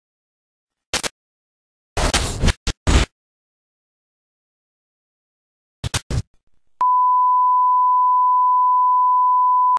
Peep sound with sudden burst